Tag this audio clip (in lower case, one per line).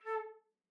music
musical instrument
wind instrument